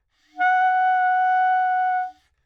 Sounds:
woodwind instrument, Music, Musical instrument

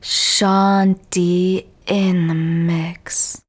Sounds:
Human voice, Speech, woman speaking

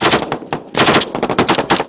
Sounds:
Explosion, gunfire

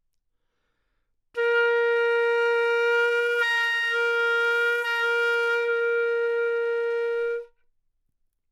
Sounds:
woodwind instrument, Musical instrument, Music

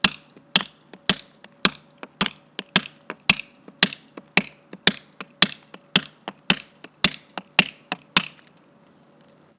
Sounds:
Tools

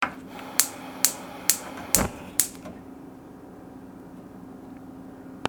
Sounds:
Fire

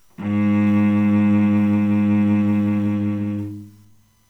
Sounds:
Bowed string instrument, Music, Musical instrument

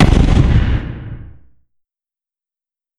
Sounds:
Explosion, Boom, Gunshot

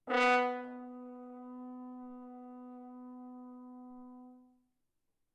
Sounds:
Music, Musical instrument, Brass instrument

